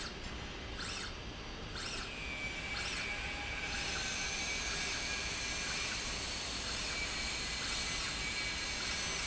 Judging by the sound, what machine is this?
slide rail